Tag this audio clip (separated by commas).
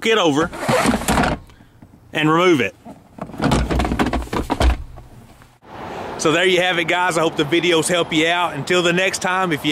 Motor vehicle (road), Car, Vehicle, Speech